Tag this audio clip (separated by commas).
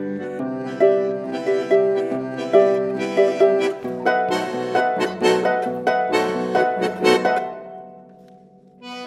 Accordion, Harp, Pizzicato